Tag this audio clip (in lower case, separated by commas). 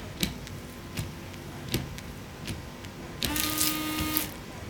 motor vehicle (road), vehicle, car